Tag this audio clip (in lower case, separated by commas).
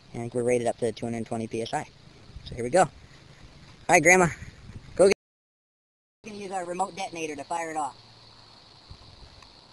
speech